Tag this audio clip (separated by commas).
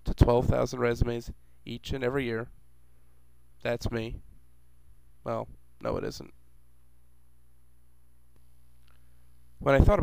Speech